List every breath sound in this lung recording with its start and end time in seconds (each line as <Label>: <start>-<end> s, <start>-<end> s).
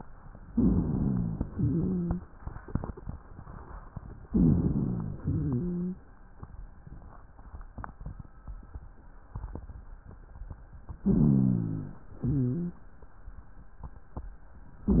Inhalation: 0.49-1.43 s, 4.25-5.18 s, 11.01-11.94 s
Exhalation: 1.46-2.28 s, 5.24-6.05 s, 12.18-12.88 s
Rhonchi: 0.49-1.43 s, 1.46-2.28 s, 4.25-5.18 s, 5.24-6.05 s, 11.01-11.94 s, 12.18-12.88 s